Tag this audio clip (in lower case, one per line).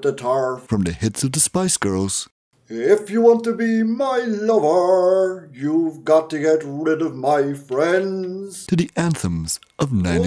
male singing
speech